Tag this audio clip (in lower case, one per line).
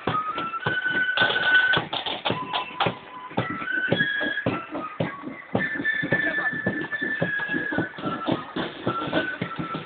footsteps
music
speech